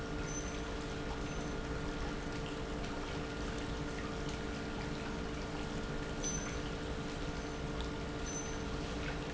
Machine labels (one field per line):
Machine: pump